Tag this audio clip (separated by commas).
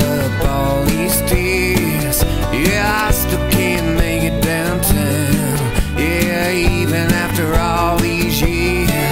Music